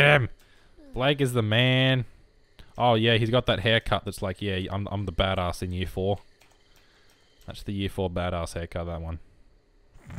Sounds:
speech

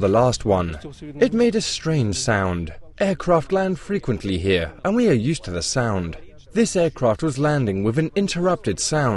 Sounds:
speech

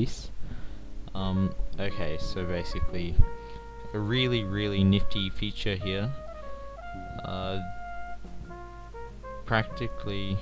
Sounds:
music
speech

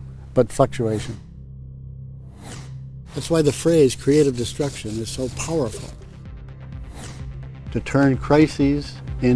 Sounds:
speech
music

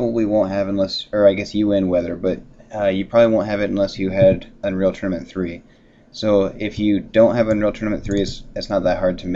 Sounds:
speech

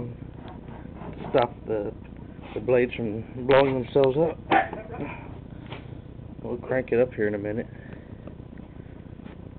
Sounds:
speech

